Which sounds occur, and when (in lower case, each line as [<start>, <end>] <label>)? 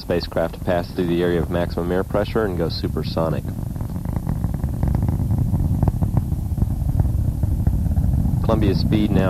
[0.00, 9.25] aircraft
[0.00, 9.25] wind noise (microphone)
[0.01, 0.45] male speech
[0.61, 1.95] male speech
[2.07, 2.77] male speech
[2.92, 3.34] male speech
[3.12, 3.25] tick
[8.37, 9.25] male speech